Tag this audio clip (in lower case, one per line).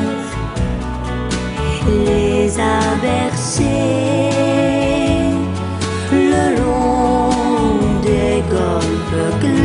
music
christmas music